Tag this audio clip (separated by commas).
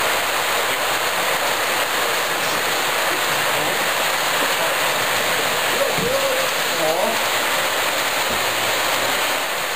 Speech